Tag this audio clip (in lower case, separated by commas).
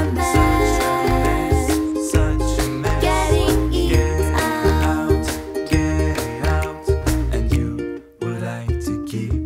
music